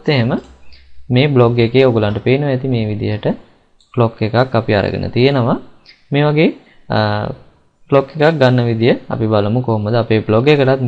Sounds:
speech

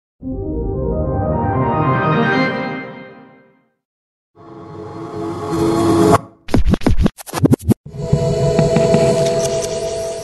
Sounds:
music

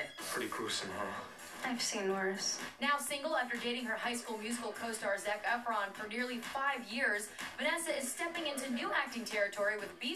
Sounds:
speech, music

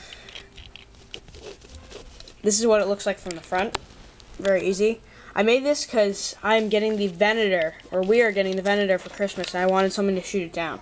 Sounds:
music, inside a small room, speech

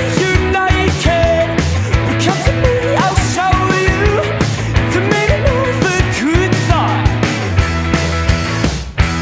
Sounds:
music

